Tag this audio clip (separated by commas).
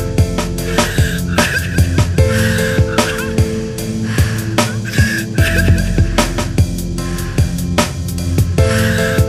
Dubstep, Ambient music, Music